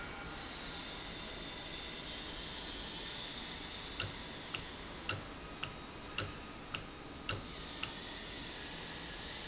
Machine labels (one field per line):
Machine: valve